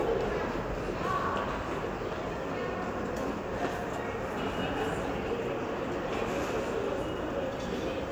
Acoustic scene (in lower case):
crowded indoor space